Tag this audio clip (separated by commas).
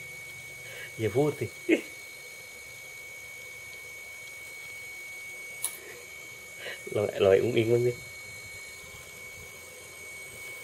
Speech